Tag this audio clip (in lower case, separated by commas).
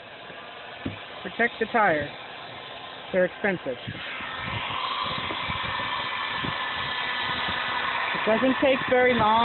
speech